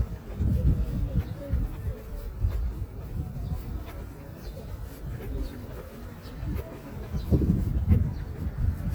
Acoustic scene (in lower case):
park